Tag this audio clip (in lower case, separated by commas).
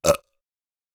eructation